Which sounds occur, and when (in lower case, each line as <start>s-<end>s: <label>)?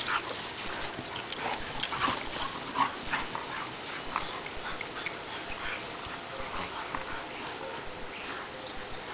0.0s-0.4s: pant (dog)
0.0s-9.1s: background noise
1.3s-1.6s: pant (dog)
1.8s-2.1s: pant (dog)
2.3s-2.5s: pant (dog)
2.6s-2.9s: pant (dog)
3.1s-3.4s: pant (dog)
4.1s-5.8s: pant (dog)
5.0s-5.3s: bird call
5.6s-5.8s: bird call
6.1s-6.3s: bird call
6.6s-7.0s: bird call
7.6s-7.8s: bird call
8.0s-8.5s: pant (dog)